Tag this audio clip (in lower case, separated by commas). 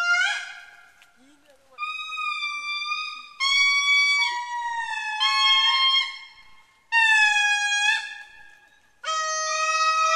gibbon howling